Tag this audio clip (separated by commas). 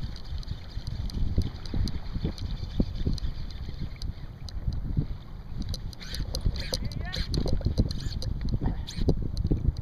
Vehicle, Speech, Water vehicle